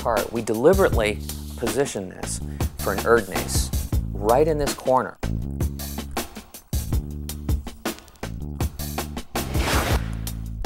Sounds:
music, speech

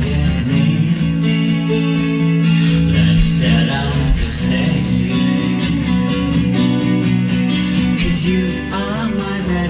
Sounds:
male singing, music

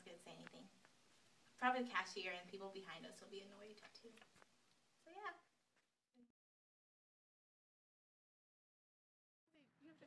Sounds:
speech, female speech

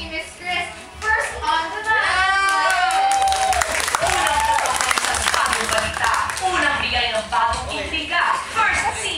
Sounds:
speech

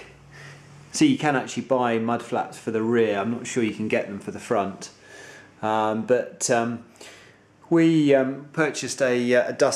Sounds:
speech

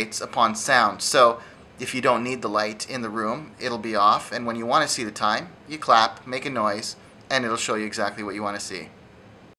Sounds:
speech

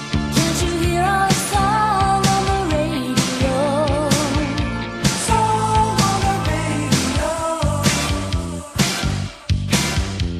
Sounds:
music

